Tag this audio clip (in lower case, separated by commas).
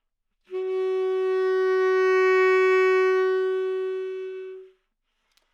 music, musical instrument, woodwind instrument